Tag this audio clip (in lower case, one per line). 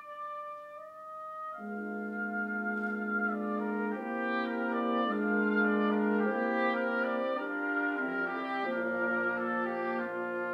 music